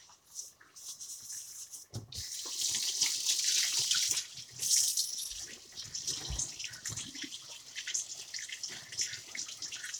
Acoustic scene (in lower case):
kitchen